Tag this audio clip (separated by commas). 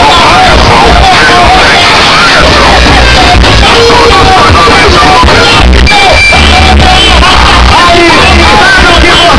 Speech, Music